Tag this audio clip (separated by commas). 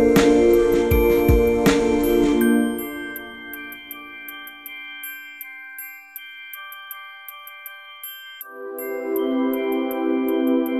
Glockenspiel, Mallet percussion, xylophone